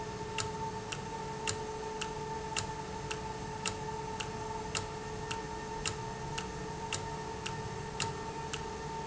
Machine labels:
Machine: valve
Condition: normal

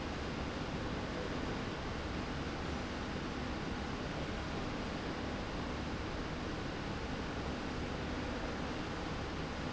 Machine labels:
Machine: slide rail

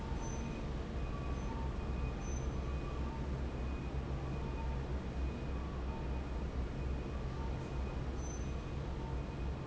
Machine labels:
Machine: fan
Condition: normal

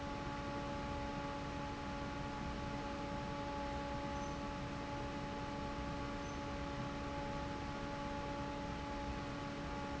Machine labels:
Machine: fan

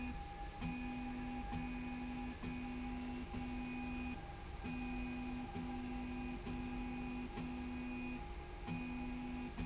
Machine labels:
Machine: slide rail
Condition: normal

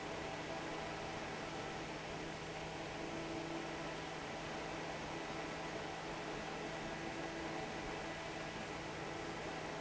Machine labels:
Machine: fan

